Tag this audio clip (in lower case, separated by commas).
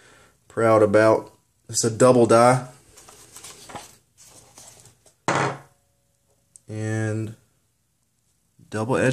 speech